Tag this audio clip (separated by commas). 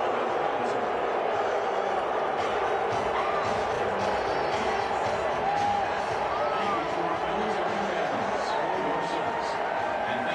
people booing